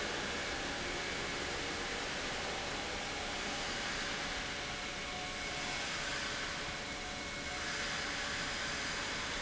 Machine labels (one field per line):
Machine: pump